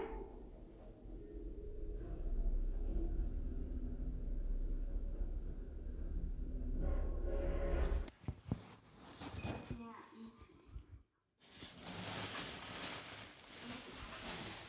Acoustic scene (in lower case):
elevator